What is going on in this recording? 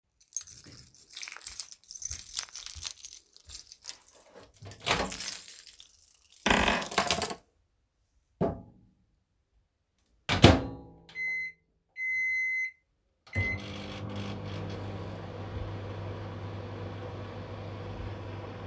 I walked into the kitchen while holding my keys in my hand. I placed they keys down, then placed some food inside the microwave and started it.